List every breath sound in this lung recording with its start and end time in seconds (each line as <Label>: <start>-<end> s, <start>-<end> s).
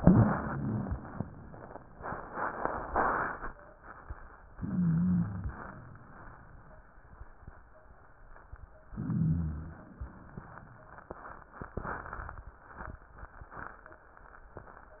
Inhalation: 4.56-5.57 s, 8.89-9.90 s
Wheeze: 4.56-5.57 s, 8.89-9.90 s